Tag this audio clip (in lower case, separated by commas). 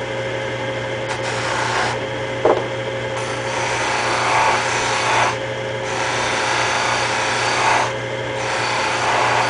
inside a small room